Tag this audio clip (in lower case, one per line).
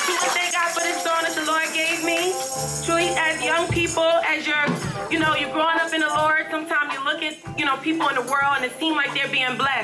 music
speech